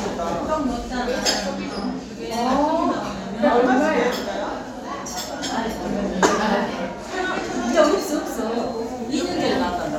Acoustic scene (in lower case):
crowded indoor space